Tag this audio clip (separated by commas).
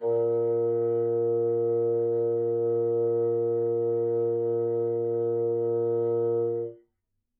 Musical instrument, Music, woodwind instrument